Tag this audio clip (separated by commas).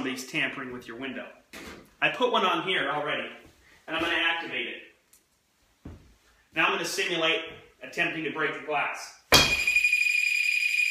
Speech